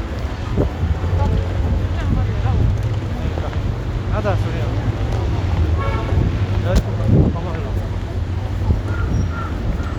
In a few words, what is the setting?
street